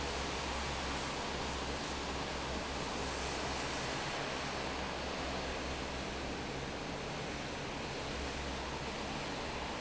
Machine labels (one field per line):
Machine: fan